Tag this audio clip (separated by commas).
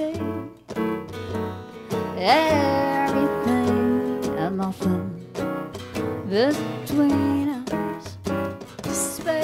Music